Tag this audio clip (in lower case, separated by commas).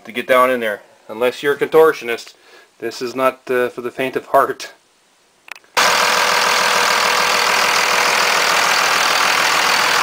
vehicle, motor vehicle (road), speech, engine